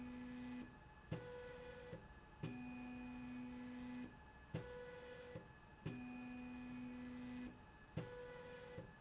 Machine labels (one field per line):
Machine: slide rail